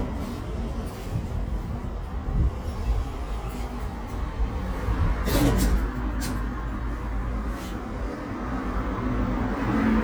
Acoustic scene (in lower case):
elevator